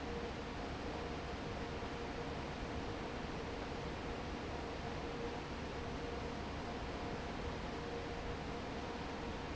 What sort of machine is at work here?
fan